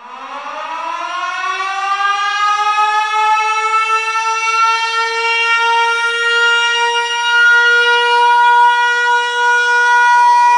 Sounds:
siren

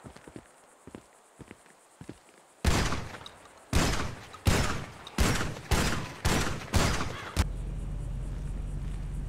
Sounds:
firing muskets

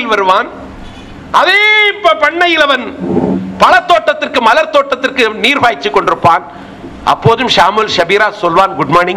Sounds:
speech
narration
man speaking

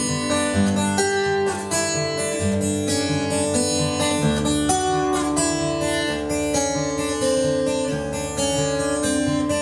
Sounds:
plucked string instrument
music
strum
musical instrument
acoustic guitar

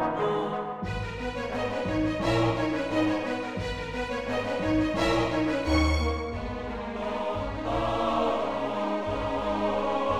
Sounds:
music

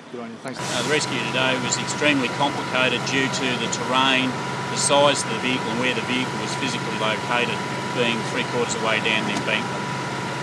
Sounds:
speech

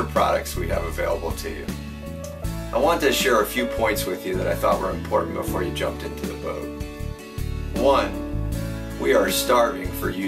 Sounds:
music
speech

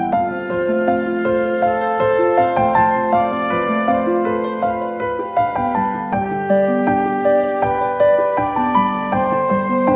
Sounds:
music

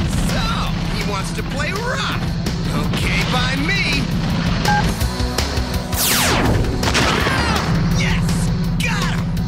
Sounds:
music
speech

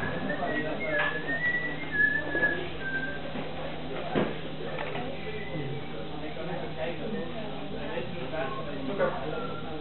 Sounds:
speech

